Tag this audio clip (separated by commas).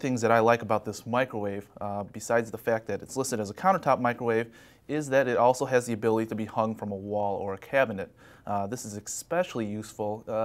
Speech